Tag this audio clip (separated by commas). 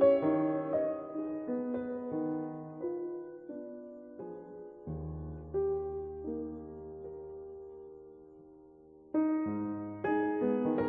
Music